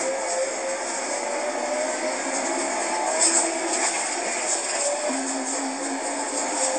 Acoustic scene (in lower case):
bus